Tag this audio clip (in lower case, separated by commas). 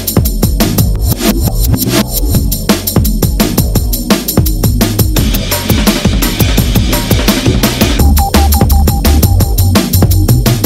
music, drum and bass